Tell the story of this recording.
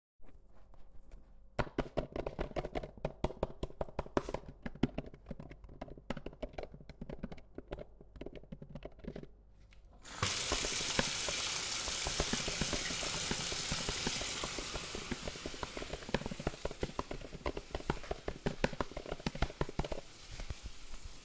I was working ont the computer while someone was washing the dishes